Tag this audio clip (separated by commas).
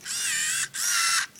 Camera, Mechanisms